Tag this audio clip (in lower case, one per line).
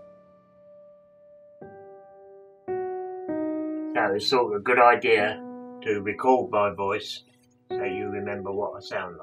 man speaking
music
speech